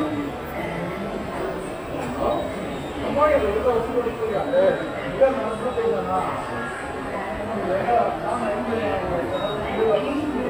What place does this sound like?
subway station